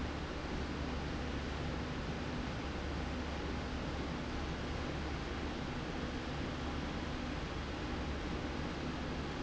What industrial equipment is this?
slide rail